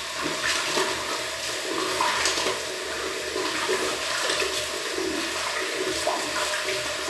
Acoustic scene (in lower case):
restroom